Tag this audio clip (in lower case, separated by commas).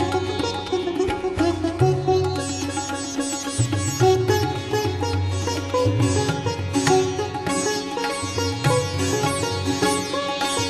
music, sitar